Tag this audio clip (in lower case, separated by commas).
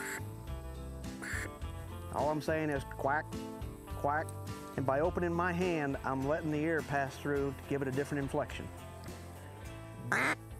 music, speech